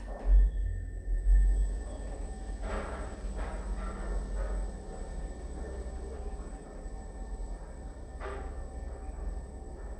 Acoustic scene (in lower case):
elevator